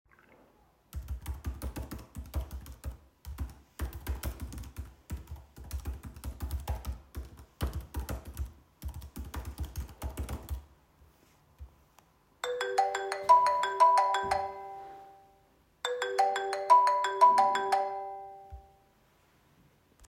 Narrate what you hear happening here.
I was sitting at a desk in the library and typing on a keyboard. While I was typing, my phone started ringing nearby.